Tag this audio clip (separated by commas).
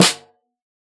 Drum, Snare drum, Music, Musical instrument, Percussion